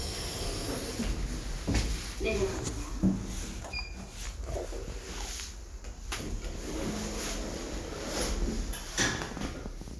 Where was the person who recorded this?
in an elevator